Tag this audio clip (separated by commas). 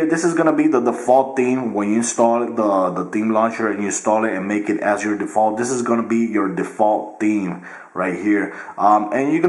Speech